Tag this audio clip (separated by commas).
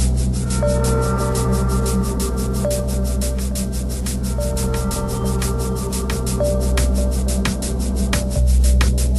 Techno, Music